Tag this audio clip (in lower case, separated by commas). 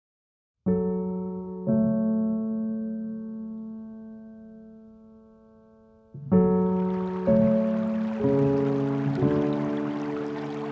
keyboard (musical), piano